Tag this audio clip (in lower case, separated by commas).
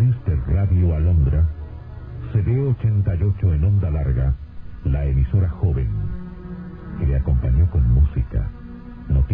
music, speech